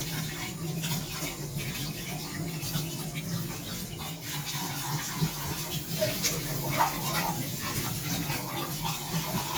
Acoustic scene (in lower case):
kitchen